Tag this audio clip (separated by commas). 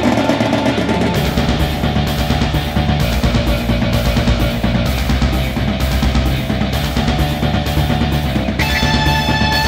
Music